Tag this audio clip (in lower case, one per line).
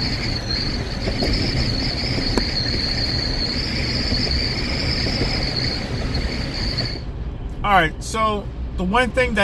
wind noise